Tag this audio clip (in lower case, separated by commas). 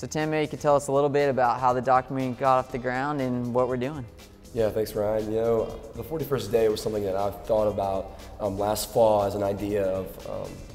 inside a small room, music, speech